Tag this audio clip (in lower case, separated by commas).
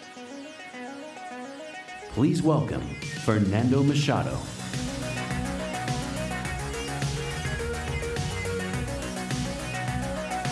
music, speech